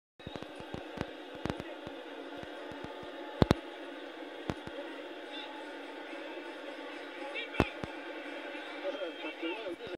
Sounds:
speech

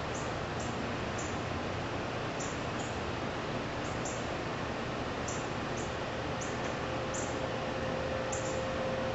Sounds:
bird

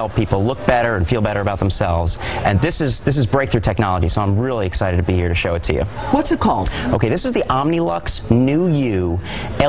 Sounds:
speech

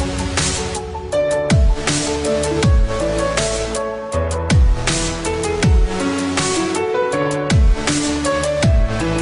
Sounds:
music

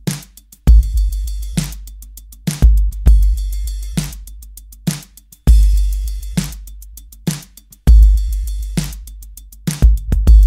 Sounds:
music

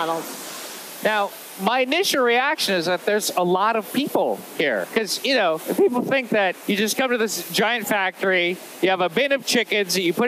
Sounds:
speech

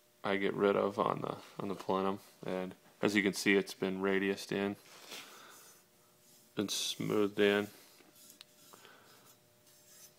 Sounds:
speech
inside a small room

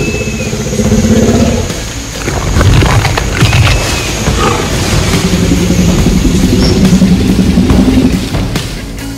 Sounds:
dinosaurs bellowing

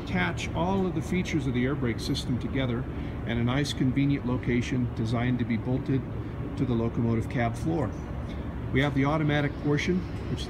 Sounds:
speech

